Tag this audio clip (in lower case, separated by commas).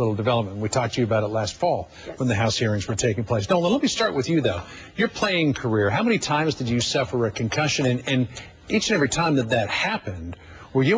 speech